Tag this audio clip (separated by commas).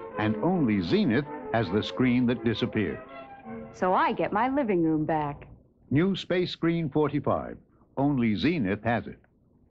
Speech, Music